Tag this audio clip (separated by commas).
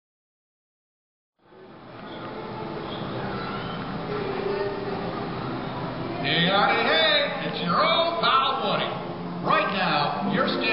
Speech